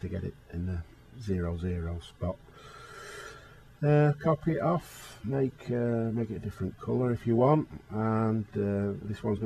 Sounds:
speech

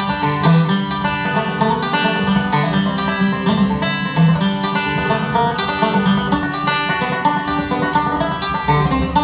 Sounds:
plucked string instrument, music

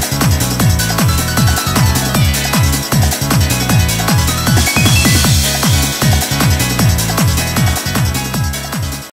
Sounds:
music, burst

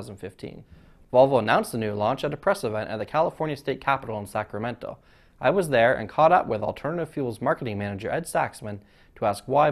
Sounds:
speech

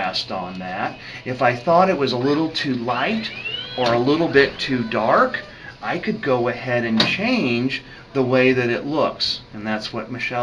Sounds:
speech, inside a small room

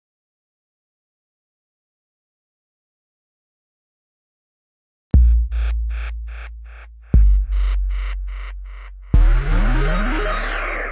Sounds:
music

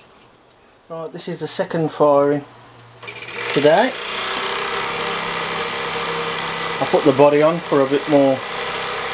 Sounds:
speech, engine

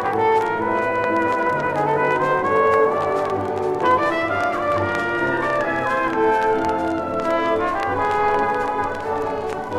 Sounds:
trombone, music, trumpet

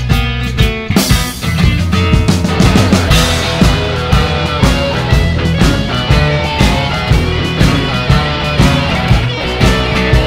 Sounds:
music, blues

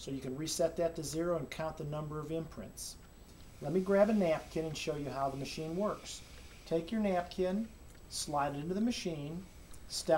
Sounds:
speech

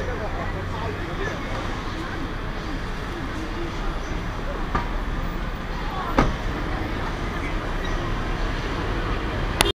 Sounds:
car, speech, vehicle

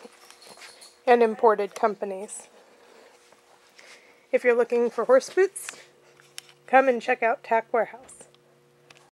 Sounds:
speech

